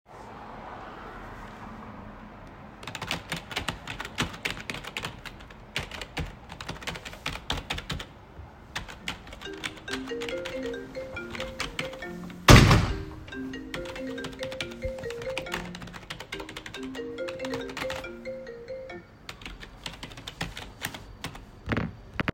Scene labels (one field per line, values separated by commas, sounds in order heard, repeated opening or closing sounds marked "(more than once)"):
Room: study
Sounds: keyboard typing, phone ringing, window